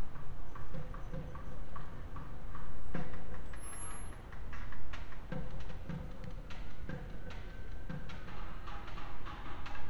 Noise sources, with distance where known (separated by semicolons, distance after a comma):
siren, far; music from an unclear source